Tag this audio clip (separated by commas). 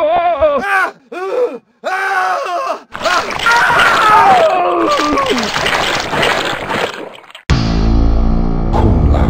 Music, Speech